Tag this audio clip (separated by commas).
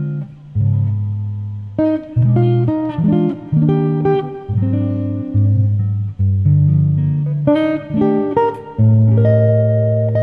Guitar, Acoustic guitar, Strum, Musical instrument, Music, Plucked string instrument